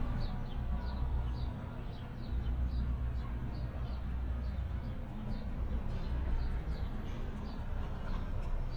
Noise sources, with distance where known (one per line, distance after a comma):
music from an unclear source, far